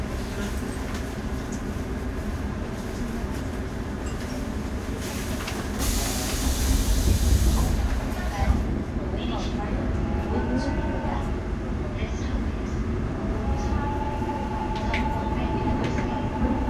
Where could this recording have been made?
on a subway train